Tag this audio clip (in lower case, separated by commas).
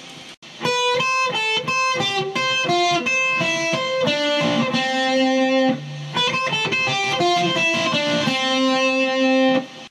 guitar, musical instrument, strum, plucked string instrument, music